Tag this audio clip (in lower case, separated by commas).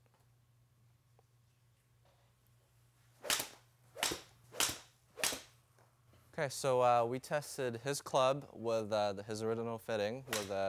speech, inside a public space